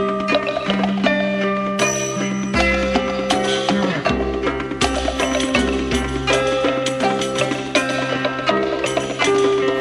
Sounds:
Psychedelic rock, Music

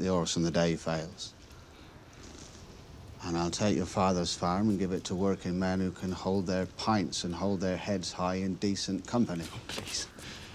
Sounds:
Speech

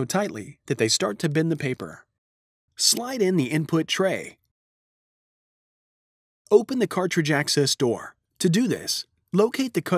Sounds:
Speech

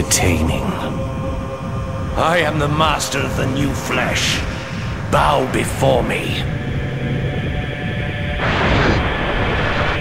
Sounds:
Speech

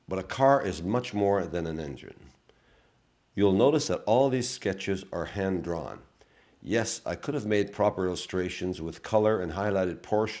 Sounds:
Speech

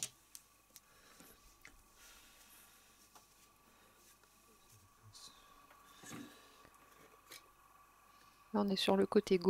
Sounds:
Speech

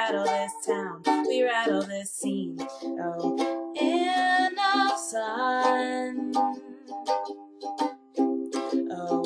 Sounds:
Music

